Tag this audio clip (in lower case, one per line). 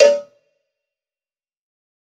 bell
cowbell